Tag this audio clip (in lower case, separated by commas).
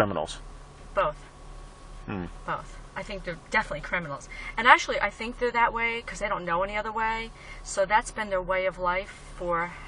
speech